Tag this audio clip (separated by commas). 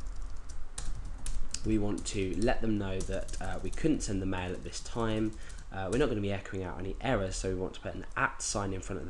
Typing